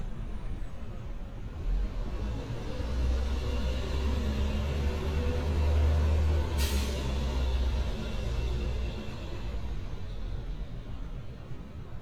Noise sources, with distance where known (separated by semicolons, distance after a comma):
large-sounding engine